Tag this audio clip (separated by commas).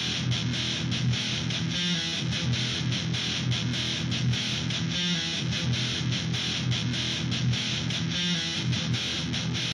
Music